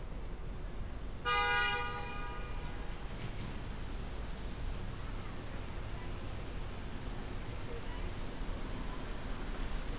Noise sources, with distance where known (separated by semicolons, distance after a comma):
car horn, near